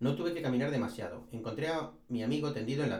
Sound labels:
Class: speech